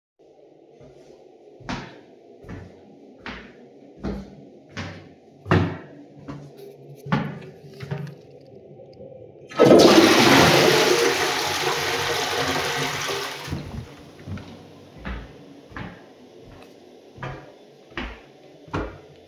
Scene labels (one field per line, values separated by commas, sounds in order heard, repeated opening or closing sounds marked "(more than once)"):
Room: bathroom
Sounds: footsteps, toilet flushing